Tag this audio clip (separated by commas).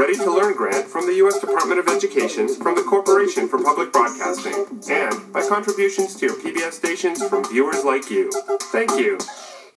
Speech, Music